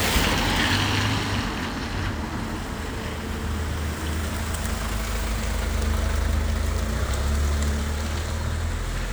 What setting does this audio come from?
residential area